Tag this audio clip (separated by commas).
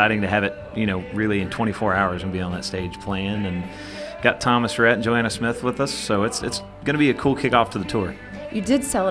Music, Speech